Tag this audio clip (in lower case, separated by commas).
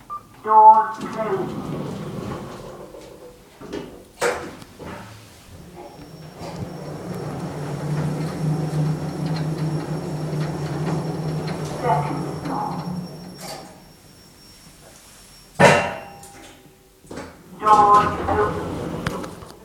door, sliding door, home sounds